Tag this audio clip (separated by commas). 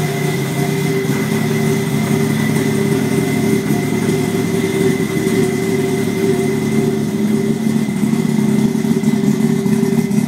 Vehicle, Car